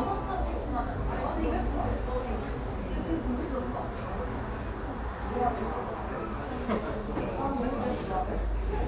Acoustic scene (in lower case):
cafe